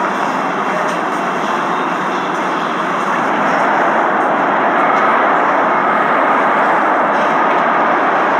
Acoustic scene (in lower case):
subway station